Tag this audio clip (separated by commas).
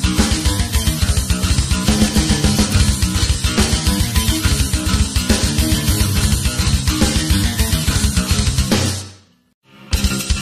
Drum kit, Drum, Musical instrument, Bass drum, Music